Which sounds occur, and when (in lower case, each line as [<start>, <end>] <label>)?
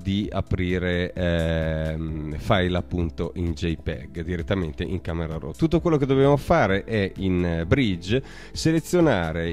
[0.00, 8.21] male speech
[0.00, 9.52] music
[8.19, 8.50] breathing
[8.52, 9.52] male speech